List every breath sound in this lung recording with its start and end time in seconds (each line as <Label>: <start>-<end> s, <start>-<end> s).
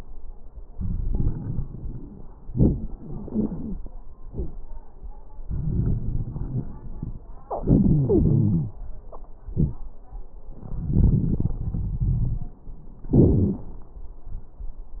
Inhalation: 0.77-2.27 s, 5.46-7.27 s, 10.57-12.55 s
Exhalation: 2.48-3.84 s, 7.45-8.75 s, 13.05-13.70 s
Wheeze: 7.45-8.75 s, 13.05-13.70 s
Crackles: 0.77-2.27 s, 2.48-3.84 s, 5.46-7.27 s, 10.57-12.55 s